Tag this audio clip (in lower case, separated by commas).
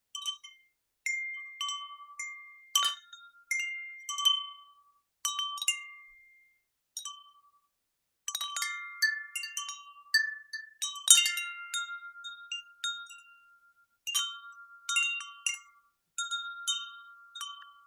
bell, wind chime, chime